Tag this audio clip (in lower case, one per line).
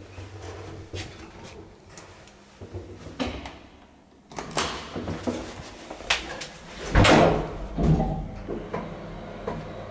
drawer open or close